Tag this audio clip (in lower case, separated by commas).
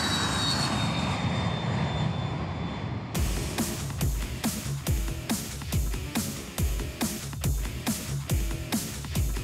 aircraft engine, music